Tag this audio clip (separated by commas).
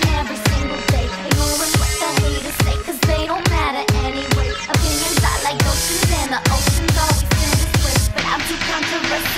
Music, Electronic music